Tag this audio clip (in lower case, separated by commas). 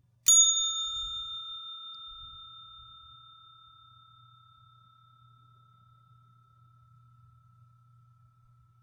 bell